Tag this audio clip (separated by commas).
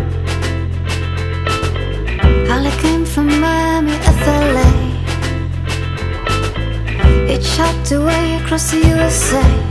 Music